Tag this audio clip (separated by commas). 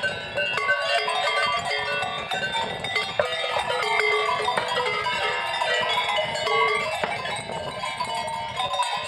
bovinae cowbell